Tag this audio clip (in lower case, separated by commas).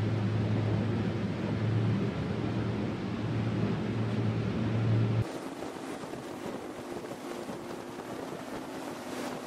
vehicle, boat, speedboat